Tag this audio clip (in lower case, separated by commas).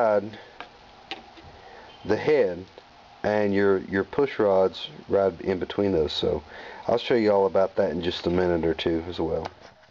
speech